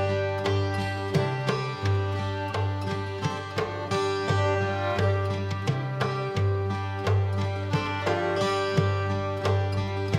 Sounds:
Music

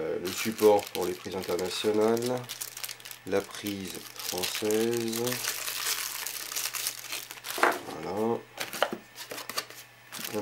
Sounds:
Speech

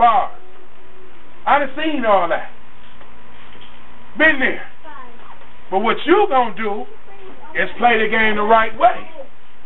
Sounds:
Male speech, Speech, woman speaking, Narration

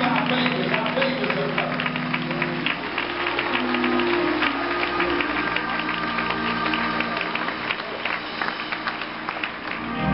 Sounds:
Speech, Music

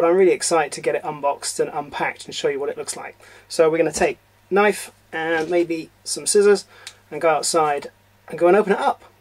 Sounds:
Speech

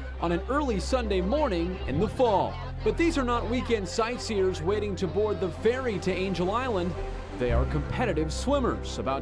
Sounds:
Speech, Music

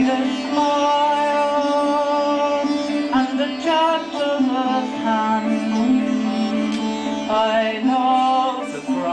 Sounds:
Chant, Music, Sitar

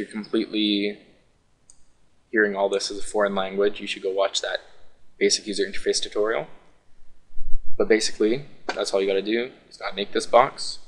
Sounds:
Speech

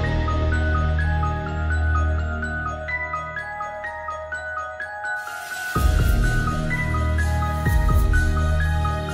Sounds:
Music

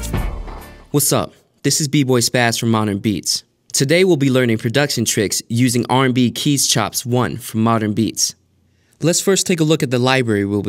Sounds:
Speech, Music

